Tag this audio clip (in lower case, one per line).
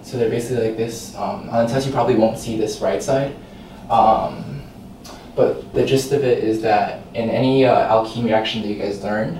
speech